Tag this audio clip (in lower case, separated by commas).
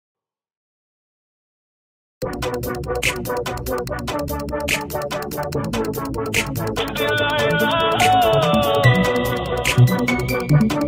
music, electronic music